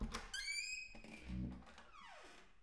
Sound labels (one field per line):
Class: door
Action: opening